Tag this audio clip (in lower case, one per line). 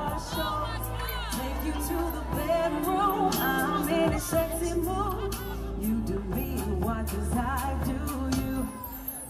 music